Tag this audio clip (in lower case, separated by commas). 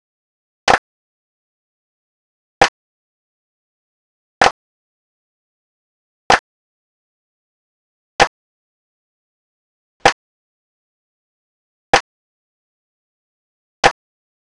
clapping, hands